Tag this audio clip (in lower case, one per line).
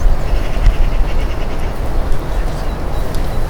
animal
bird
bird call
wild animals